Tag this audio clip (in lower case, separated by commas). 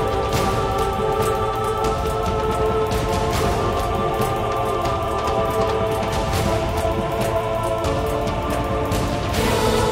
music, video game music